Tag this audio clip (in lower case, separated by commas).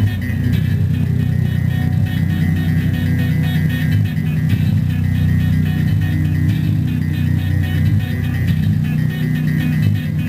music, electronic music, techno